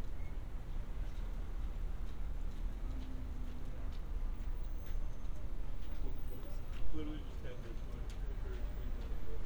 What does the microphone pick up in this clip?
background noise